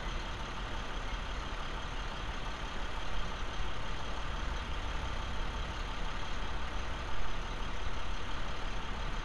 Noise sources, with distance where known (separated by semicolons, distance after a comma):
engine of unclear size, near